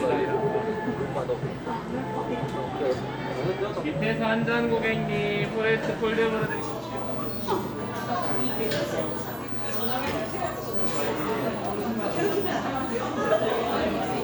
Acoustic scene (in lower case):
cafe